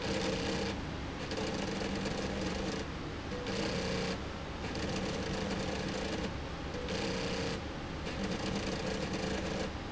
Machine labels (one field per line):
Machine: slide rail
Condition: abnormal